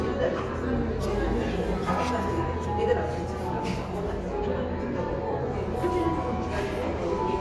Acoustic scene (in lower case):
cafe